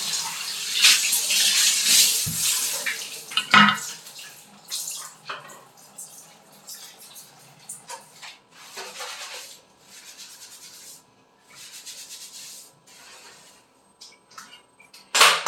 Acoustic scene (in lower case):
restroom